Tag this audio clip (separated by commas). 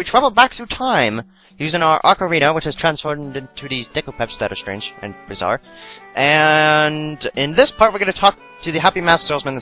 Music, Speech